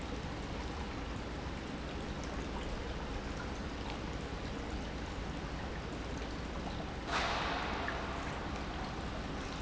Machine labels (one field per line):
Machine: pump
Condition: normal